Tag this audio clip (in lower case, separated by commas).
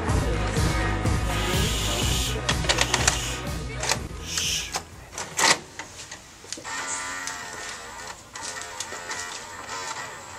music, speech